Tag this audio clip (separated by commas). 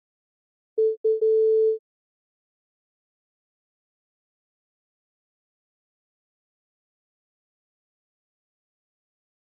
Musical instrument, Piano, Keyboard (musical), Music